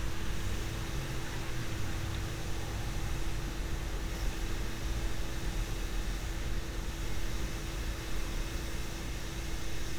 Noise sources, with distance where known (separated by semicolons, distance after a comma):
small-sounding engine